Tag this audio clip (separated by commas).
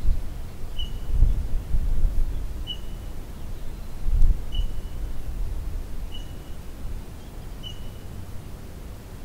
outside, rural or natural